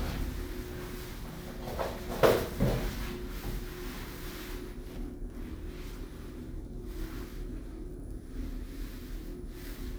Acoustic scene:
elevator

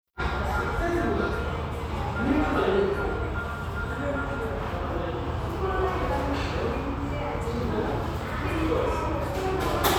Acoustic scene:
restaurant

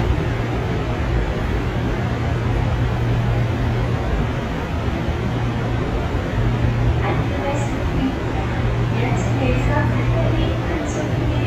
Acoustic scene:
subway train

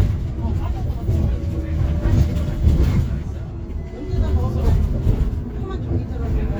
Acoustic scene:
bus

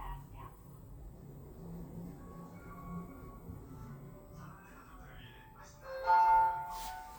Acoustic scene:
elevator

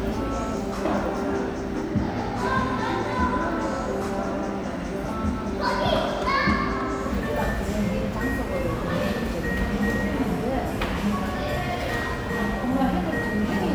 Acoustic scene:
cafe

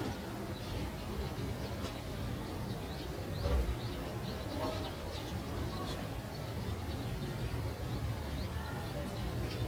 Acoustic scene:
residential area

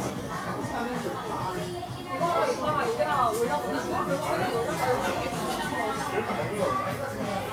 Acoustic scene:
restaurant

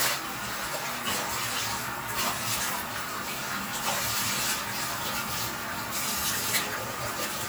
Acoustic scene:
restroom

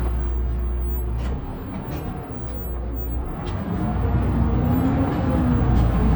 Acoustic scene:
bus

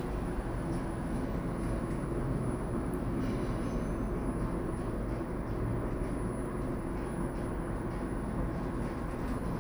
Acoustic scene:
elevator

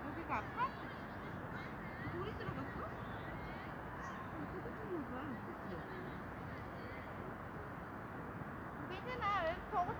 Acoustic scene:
residential area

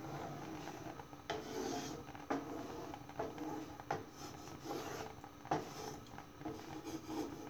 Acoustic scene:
kitchen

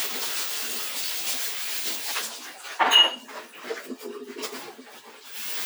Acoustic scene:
kitchen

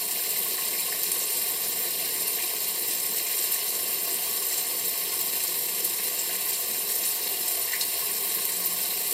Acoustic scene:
restroom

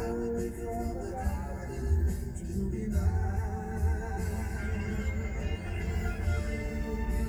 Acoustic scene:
car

